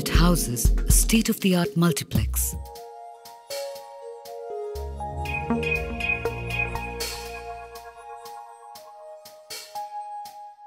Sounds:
Music

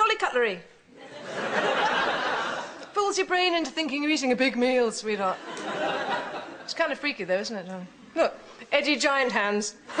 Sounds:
Speech

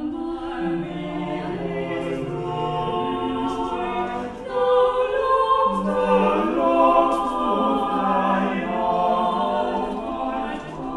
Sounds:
Music

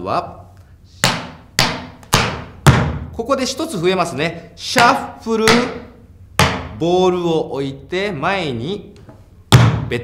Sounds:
tap dancing

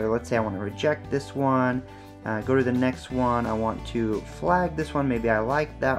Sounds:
Speech, Music

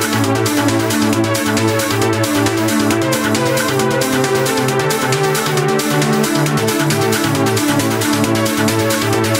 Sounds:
Music, Electronic music, Trance music

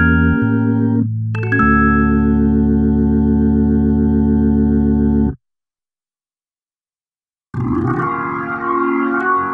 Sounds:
Keyboard (musical), Synthesizer, Musical instrument, Music, Organ

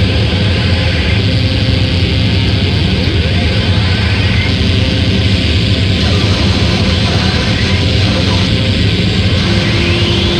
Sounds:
Cacophony

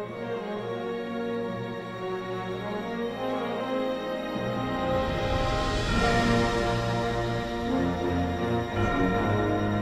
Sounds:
Music, Tender music, Soundtrack music, Theme music, Background music

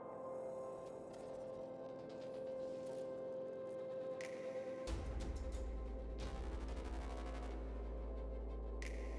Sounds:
Music

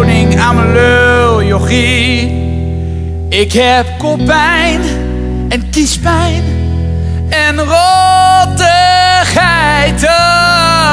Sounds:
Music

